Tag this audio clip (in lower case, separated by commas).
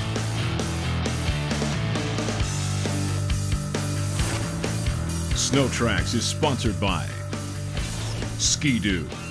music, speech